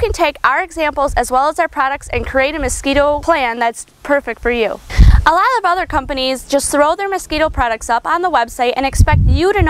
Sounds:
Speech

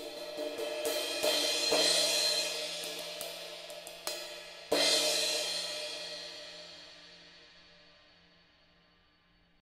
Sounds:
Musical instrument, Hi-hat, Music

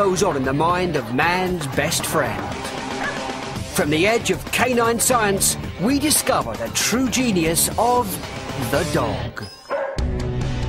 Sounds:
Bow-wow, Speech, Music

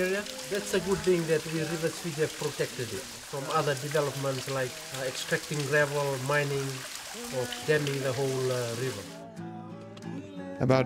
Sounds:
Speech, Music

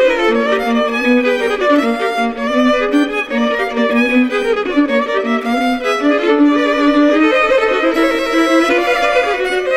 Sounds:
fiddle, Music, Musical instrument

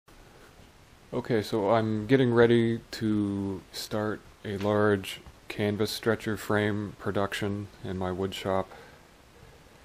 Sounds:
Speech

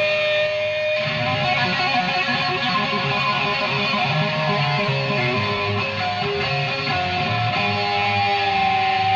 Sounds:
Music

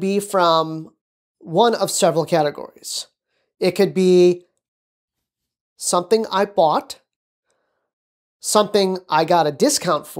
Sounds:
Speech

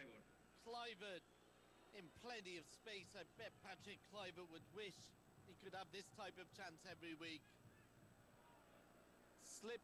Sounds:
Speech

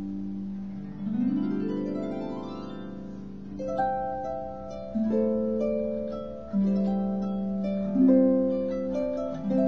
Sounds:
Musical instrument, Harp, Music

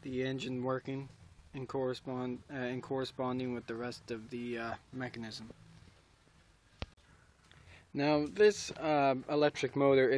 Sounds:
Speech

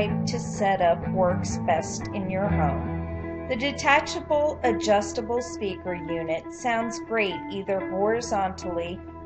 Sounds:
Music, Speech

